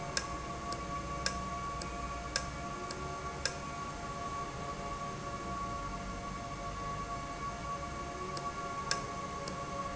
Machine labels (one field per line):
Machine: valve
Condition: normal